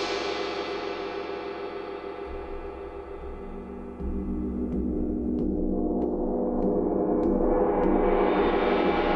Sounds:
playing gong

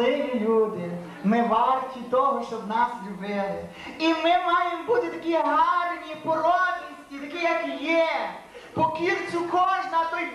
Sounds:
Speech

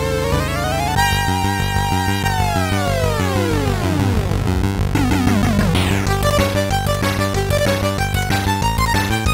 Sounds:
Music

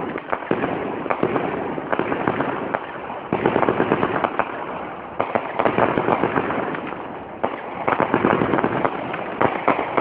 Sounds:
fireworks banging, Fireworks

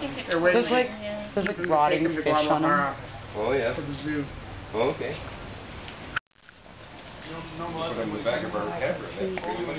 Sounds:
Speech

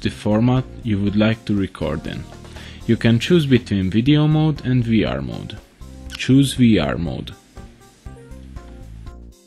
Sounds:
Speech synthesizer

